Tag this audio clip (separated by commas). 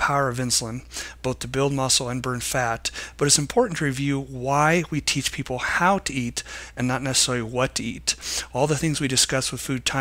Speech